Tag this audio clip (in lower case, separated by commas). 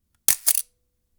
mechanisms, camera